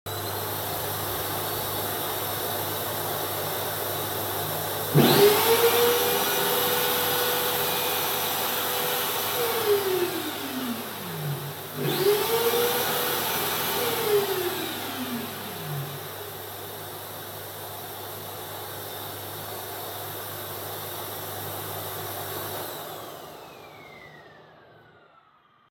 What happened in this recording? The vacuum is running. I start and stop a drill. I start and stop a drill again. I stop the vacuum.